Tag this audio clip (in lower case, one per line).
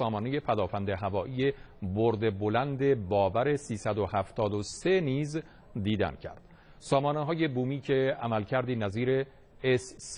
speech